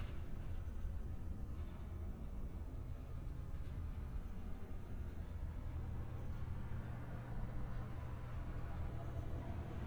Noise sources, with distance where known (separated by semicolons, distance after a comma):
medium-sounding engine